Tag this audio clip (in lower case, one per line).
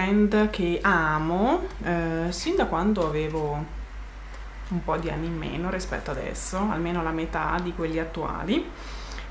speech